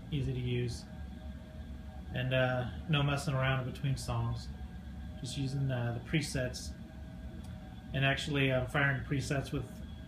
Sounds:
speech

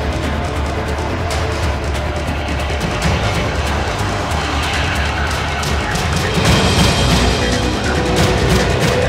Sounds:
soundtrack music
electronic music
music

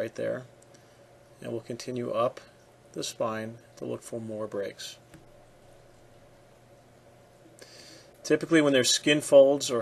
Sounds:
speech

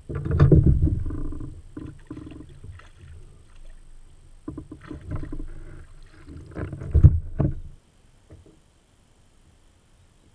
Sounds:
water vehicle
kayak

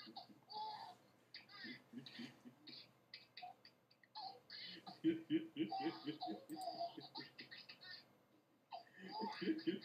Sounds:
snicker

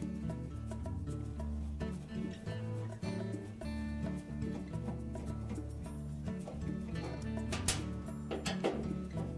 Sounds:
music

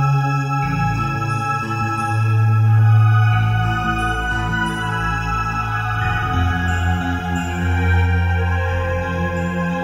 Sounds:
rustle
music

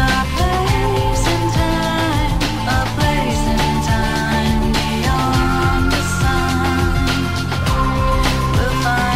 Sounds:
music

